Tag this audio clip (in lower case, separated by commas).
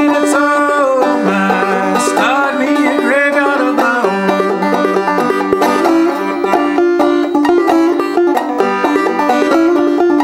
banjo, playing banjo, bluegrass, guitar, plucked string instrument, musical instrument, music, ukulele